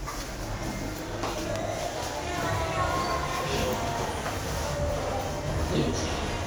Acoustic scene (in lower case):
elevator